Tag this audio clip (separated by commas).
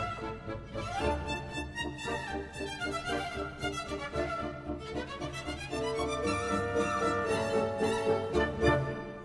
Music, Funny music